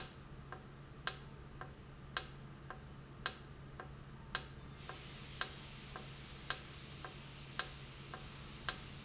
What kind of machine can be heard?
valve